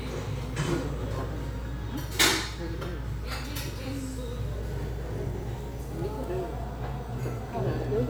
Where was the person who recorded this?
in a restaurant